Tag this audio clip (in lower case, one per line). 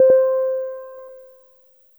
keyboard (musical)
music
musical instrument
piano